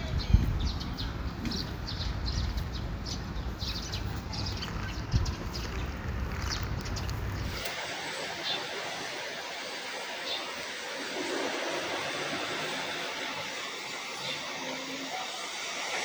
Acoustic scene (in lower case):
park